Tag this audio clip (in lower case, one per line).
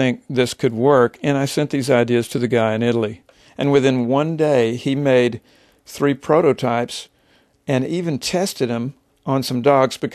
speech